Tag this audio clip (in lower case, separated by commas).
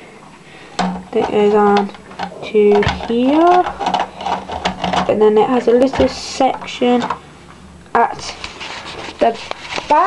speech, inside a small room